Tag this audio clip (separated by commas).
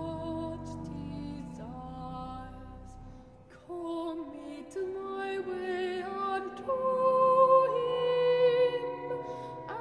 Opera, Music